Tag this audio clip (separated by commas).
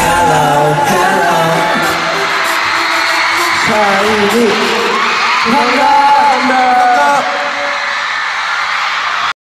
Music, Male singing, Speech